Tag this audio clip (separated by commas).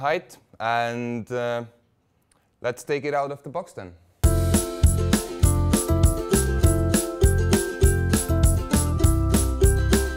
Speech, Music